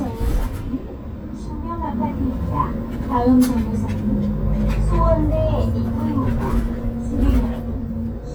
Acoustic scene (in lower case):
bus